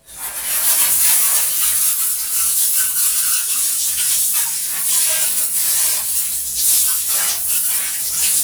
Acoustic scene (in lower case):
restroom